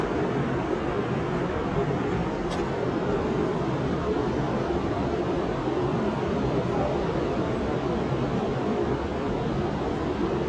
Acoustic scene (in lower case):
subway train